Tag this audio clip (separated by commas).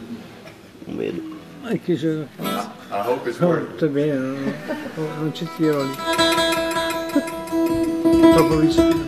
Music, Speech